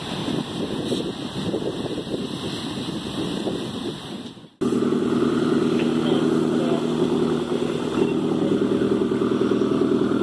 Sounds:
Water vehicle, Wind, speedboat acceleration, speedboat, Wind noise (microphone)

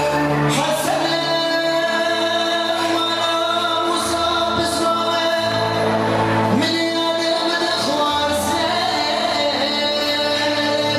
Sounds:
Music, Male singing

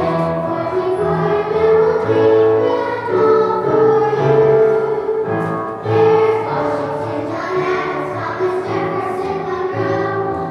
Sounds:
Music, Choir, Child singing

